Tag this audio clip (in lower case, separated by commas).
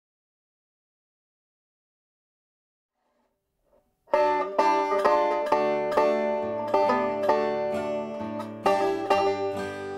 plucked string instrument, musical instrument, music, banjo, country